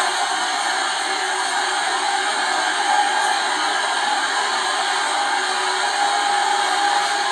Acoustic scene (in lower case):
subway train